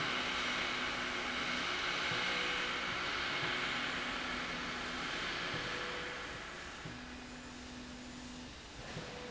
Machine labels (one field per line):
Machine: slide rail